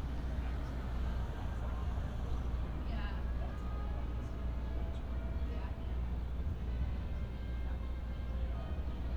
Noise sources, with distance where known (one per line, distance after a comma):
music from a fixed source
person or small group talking, near